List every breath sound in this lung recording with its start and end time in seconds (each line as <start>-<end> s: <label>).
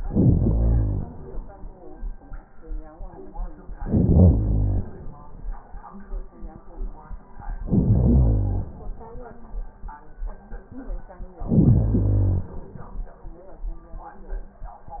0.00-1.10 s: inhalation
3.79-4.90 s: inhalation
7.64-8.74 s: inhalation
11.41-12.51 s: inhalation